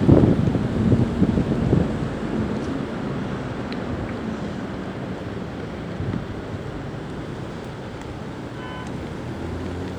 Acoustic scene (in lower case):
street